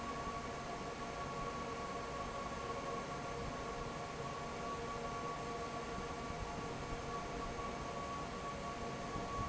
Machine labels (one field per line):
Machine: fan